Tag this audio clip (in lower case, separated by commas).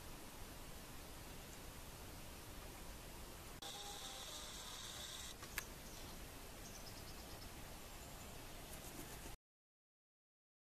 woodpecker pecking tree